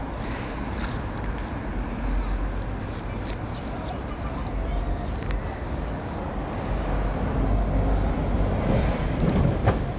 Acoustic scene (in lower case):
street